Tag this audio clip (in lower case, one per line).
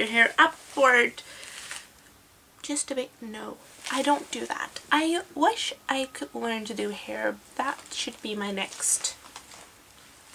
speech